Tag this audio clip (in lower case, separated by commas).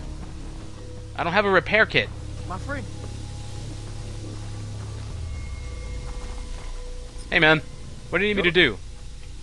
speech